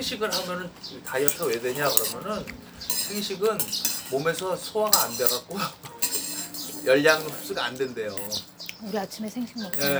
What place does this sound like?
restaurant